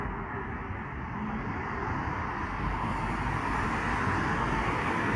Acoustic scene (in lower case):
street